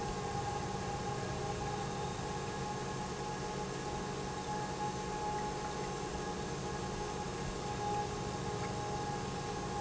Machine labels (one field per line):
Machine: pump